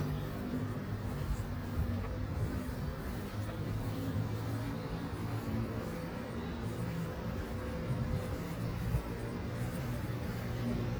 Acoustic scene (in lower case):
residential area